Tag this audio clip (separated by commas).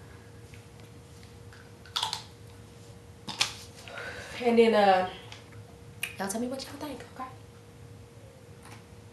Female speech, Speech, Music